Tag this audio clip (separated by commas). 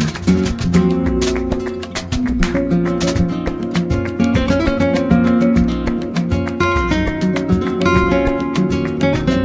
Music, Plucked string instrument